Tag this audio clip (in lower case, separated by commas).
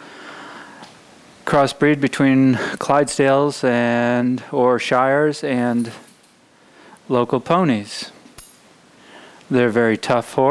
speech